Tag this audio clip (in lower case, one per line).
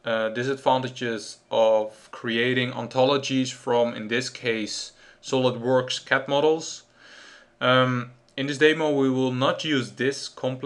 speech